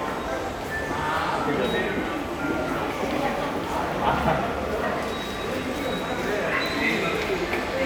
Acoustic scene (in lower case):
subway station